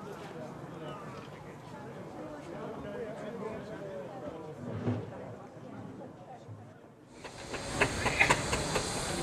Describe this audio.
People chatting when engine sputters